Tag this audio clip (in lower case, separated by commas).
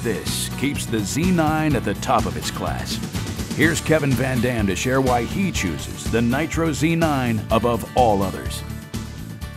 music, speech